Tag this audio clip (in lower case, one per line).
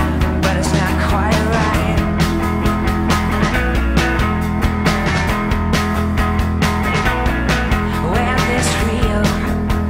psychedelic rock
singing
music